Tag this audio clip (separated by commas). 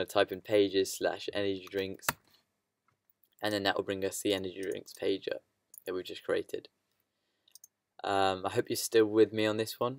Speech, Clicking